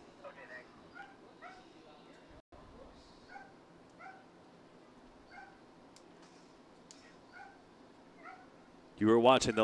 A dog is barking in the distances, followed by a man speaking